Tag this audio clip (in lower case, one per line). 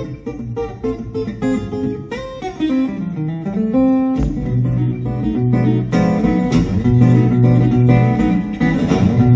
plucked string instrument
blues
strum
musical instrument
guitar
music